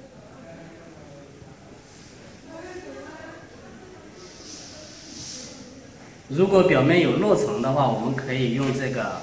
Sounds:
Speech

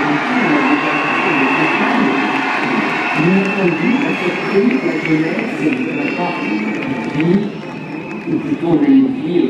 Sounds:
Speech

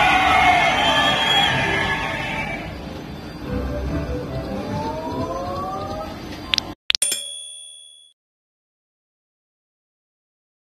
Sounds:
slot machine

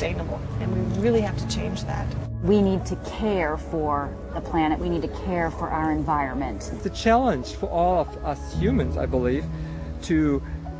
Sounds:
Music, Speech

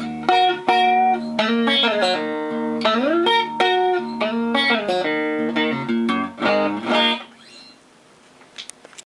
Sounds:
Musical instrument, Music, Plucked string instrument, Guitar

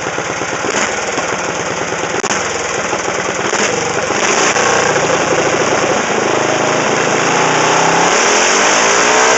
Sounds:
Vehicle, outside, urban or man-made

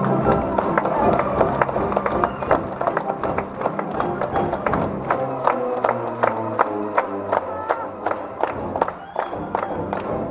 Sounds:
Music

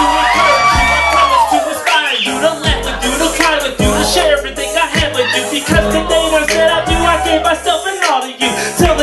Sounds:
Rapping, Song

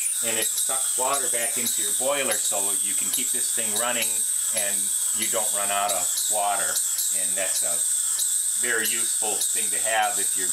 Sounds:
Speech

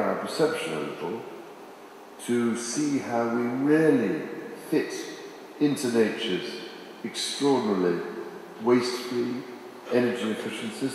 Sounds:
man speaking, Speech

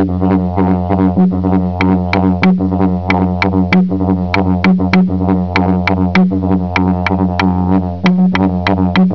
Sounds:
Music

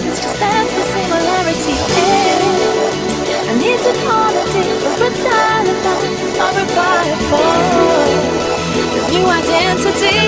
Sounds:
Music

